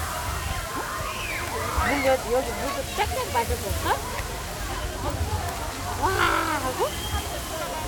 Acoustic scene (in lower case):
park